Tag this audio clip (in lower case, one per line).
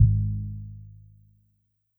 music
keyboard (musical)
piano
musical instrument